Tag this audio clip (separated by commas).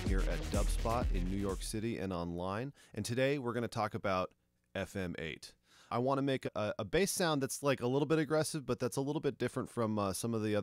Music, Speech